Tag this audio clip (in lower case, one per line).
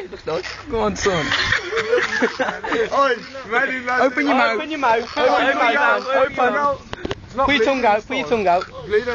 speech